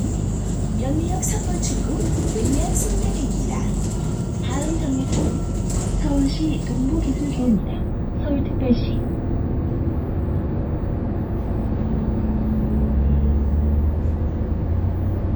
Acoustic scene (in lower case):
bus